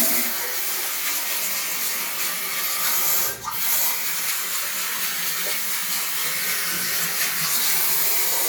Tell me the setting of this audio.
restroom